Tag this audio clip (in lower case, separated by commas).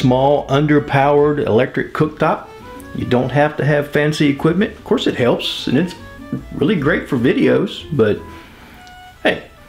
speech, music